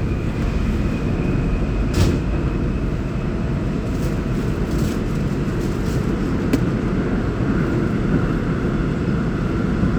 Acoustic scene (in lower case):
subway train